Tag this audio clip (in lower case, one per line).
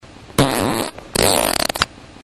fart